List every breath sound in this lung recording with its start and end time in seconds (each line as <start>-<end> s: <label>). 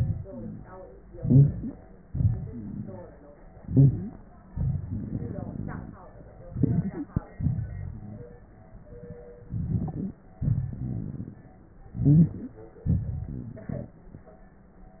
1.06-1.69 s: wheeze
1.06-2.07 s: inhalation
2.05-3.19 s: exhalation
2.46-3.01 s: wheeze
3.55-4.13 s: stridor
3.55-4.47 s: inhalation
4.48-6.07 s: exhalation
4.48-6.07 s: wheeze
6.37-7.33 s: inhalation
6.49-7.16 s: stridor
7.34-8.38 s: exhalation
7.64-8.29 s: wheeze
9.42-10.36 s: inhalation
9.42-10.36 s: crackles
10.38-11.55 s: exhalation
10.78-11.38 s: wheeze
11.84-12.85 s: inhalation
11.96-12.39 s: wheeze
12.83-14.03 s: exhalation
13.32-14.03 s: wheeze